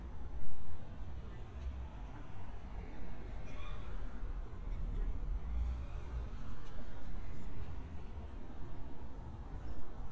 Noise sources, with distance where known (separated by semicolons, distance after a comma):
medium-sounding engine, far